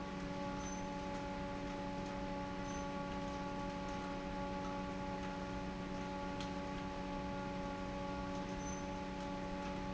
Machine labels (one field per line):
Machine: fan